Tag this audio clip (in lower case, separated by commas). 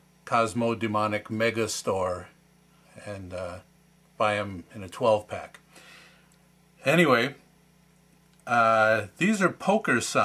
speech